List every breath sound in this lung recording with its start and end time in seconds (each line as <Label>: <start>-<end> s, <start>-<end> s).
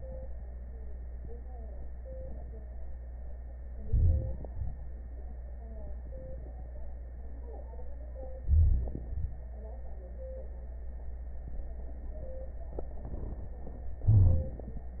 Inhalation: 3.85-4.48 s, 8.44-8.95 s, 14.08-14.57 s
Exhalation: 4.52-4.81 s, 9.10-9.38 s
Wheeze: 14.08-14.57 s